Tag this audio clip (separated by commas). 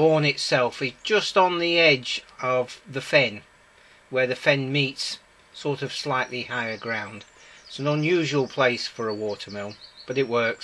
Speech